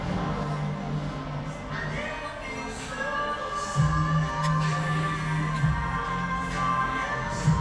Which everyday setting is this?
cafe